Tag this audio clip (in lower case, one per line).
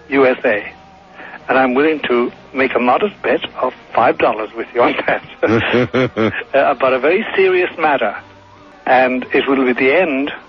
speech